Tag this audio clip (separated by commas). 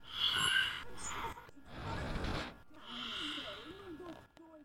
Breathing, Respiratory sounds